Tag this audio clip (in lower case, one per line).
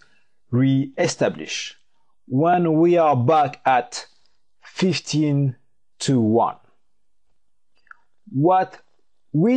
speech